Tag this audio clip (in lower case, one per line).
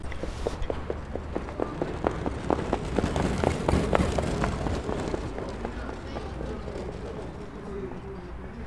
animal
livestock